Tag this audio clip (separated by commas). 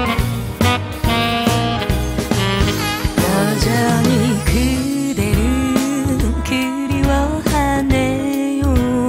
Music